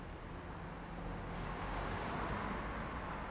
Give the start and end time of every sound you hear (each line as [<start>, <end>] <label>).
[0.00, 3.31] car
[0.00, 3.31] car wheels rolling